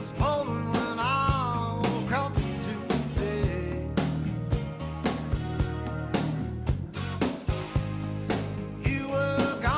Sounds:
music

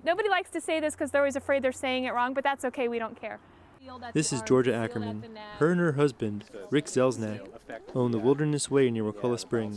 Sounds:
speech

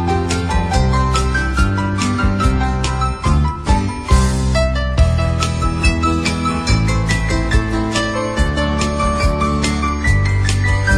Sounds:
music

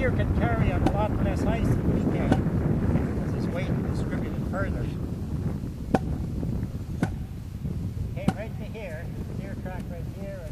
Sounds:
speech

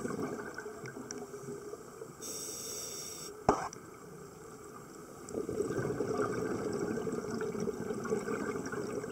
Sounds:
scuba diving

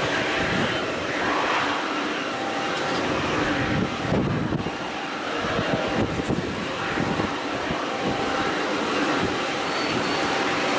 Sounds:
airplane flyby

